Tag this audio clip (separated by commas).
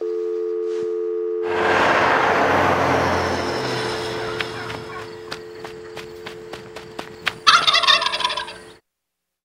Fowl, Turkey, Gobble